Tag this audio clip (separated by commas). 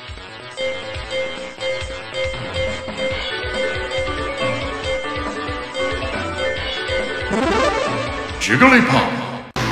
Music